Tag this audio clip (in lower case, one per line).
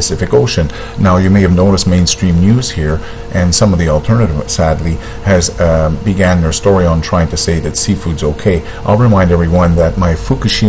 speech